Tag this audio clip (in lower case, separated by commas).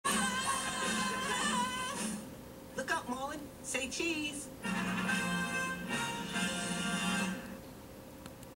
music, television, speech